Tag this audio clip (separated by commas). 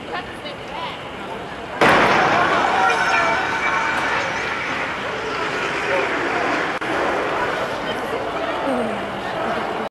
Speech, Car, Motor vehicle (road), Vehicle